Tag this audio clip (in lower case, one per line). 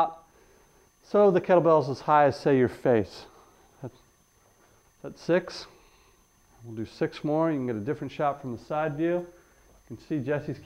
speech